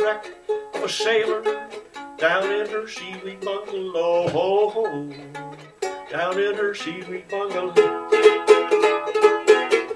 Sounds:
music, mandolin

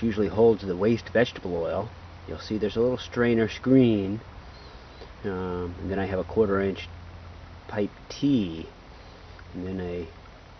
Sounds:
speech

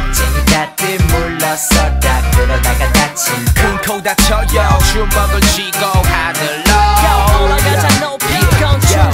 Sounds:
music

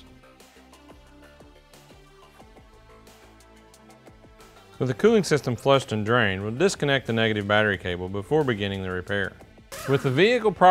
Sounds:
speech, music

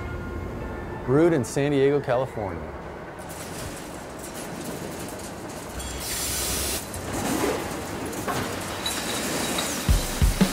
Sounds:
speech

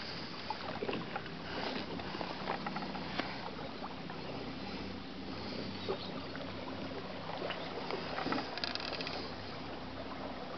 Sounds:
water vehicle, vehicle

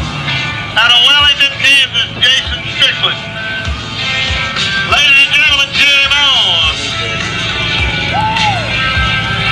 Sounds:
music, speech, vehicle

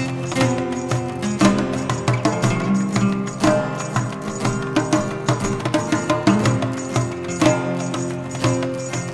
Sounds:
plucked string instrument, musical instrument, music, guitar

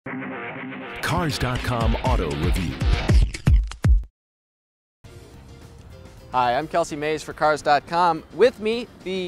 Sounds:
speech, music

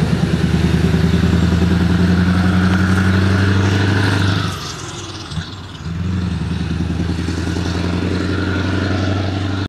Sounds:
car, vehicle

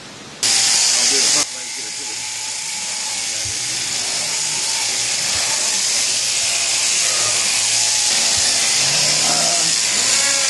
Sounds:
speech

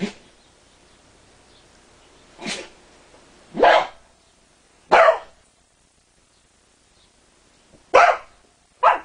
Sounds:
animal, bow-wow, dog, inside a small room, domestic animals

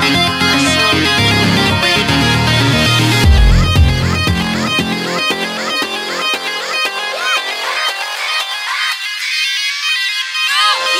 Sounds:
music, dance music

